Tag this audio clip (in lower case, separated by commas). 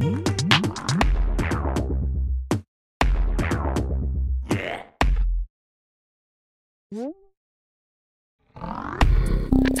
music